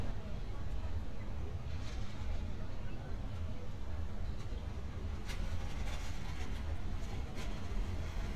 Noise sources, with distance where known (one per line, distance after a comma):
non-machinery impact, near
person or small group talking, far